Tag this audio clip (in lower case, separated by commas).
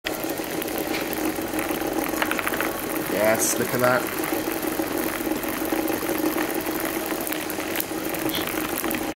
speech